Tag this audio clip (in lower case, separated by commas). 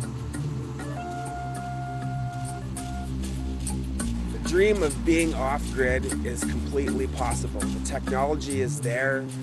speech, music, rustling leaves